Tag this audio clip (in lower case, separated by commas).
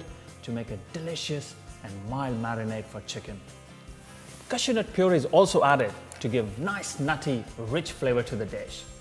music, speech